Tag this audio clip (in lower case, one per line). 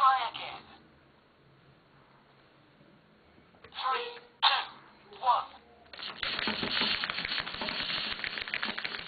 speech